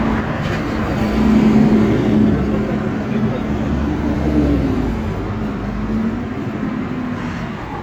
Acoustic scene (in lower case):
street